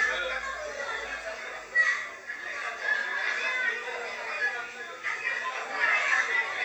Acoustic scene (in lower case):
crowded indoor space